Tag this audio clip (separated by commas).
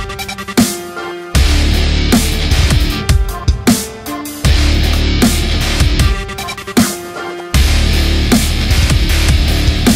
Electronic music, Music, Dubstep